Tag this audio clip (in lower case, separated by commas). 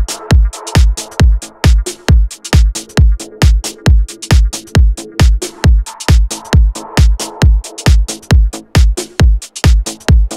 music